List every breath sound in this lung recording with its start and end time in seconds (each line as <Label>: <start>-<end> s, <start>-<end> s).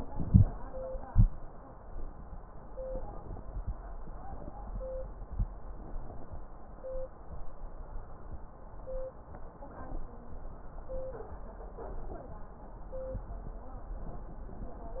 Inhalation: 0.11-0.50 s
Exhalation: 1.09-1.30 s